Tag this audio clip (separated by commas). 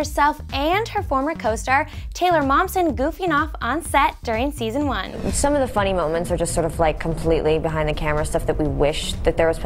Female speech